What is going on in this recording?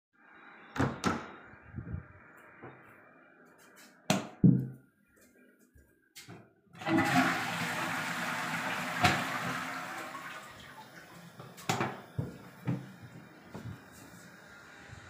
I entered the WC flushed the toilet and then left WC and turned lights off.